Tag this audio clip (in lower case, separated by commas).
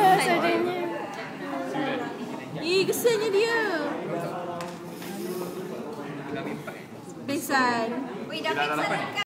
speech